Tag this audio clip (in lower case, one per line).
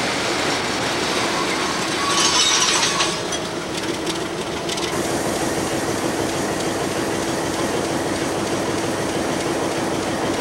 rail transport
train
railroad car